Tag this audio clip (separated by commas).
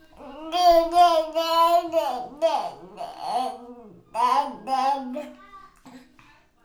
Speech, Human voice